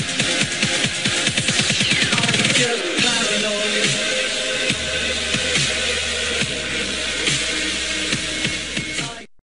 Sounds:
Music

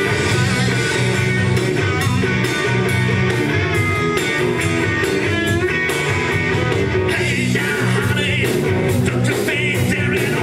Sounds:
Blues, Music

